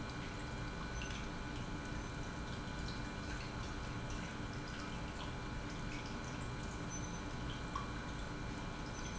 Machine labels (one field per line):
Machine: pump